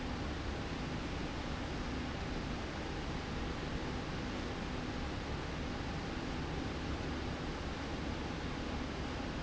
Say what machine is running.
slide rail